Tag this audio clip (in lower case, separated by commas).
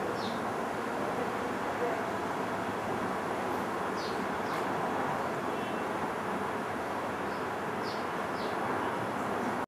animal, bird, coo